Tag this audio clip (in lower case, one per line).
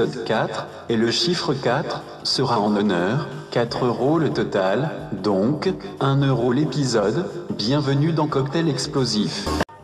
speech
music